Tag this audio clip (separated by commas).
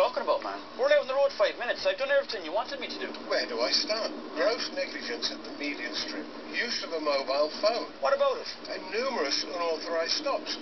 Speech